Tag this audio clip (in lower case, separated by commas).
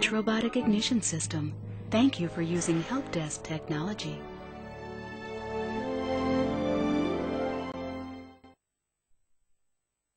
speech, music